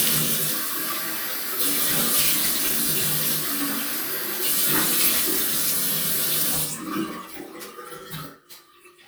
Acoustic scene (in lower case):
restroom